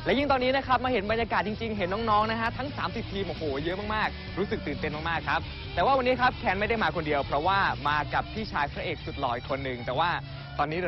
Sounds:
music, speech

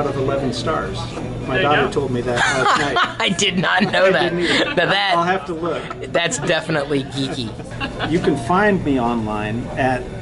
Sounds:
music, speech

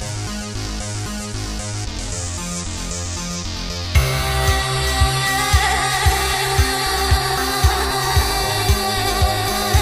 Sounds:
music, music of asia

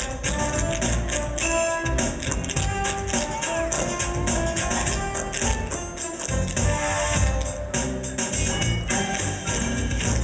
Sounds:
music, soundtrack music

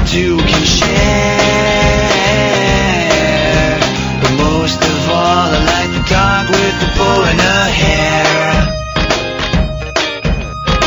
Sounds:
music

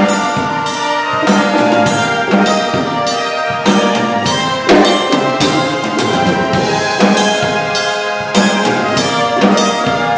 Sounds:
brass instrument, music, orchestra

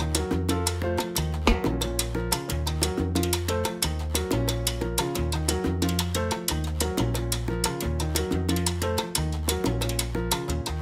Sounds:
playing timbales

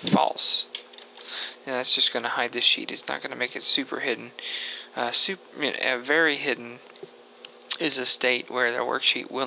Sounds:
speech

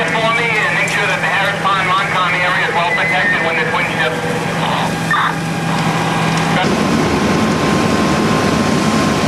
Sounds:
speech

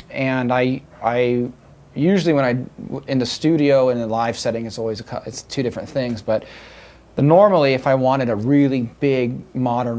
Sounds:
speech

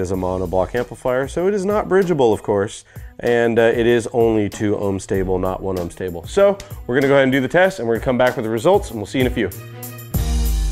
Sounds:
speech, music

